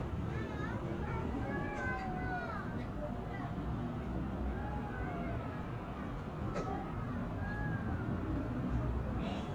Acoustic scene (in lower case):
residential area